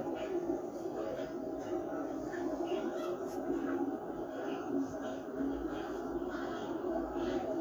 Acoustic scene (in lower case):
park